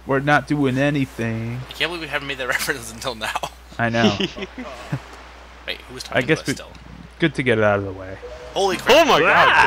Two men speak while waves of water splash softly